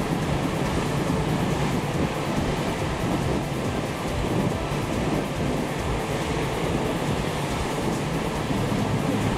Distant music playing and light wind